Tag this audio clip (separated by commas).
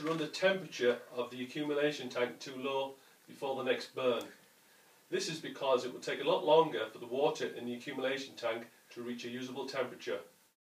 Speech